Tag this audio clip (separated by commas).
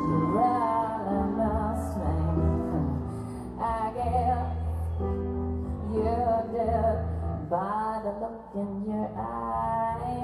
Music